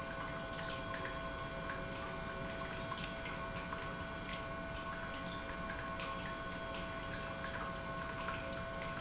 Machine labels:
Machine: pump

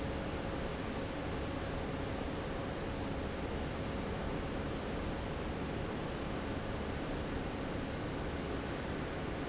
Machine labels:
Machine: fan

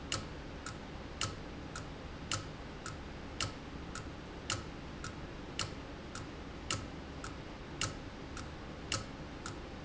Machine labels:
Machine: valve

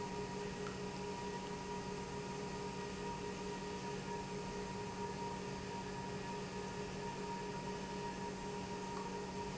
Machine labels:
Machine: pump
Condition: normal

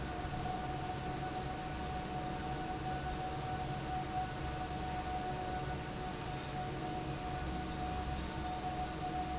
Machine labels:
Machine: fan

